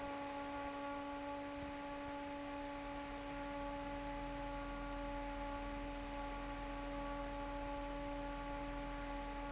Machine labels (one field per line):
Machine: fan